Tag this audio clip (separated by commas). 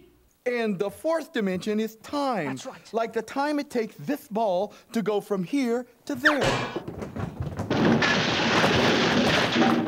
Speech